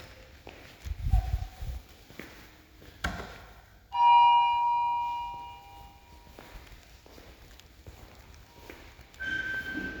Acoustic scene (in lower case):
elevator